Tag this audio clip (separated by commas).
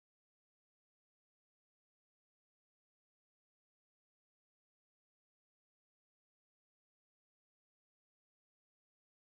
Music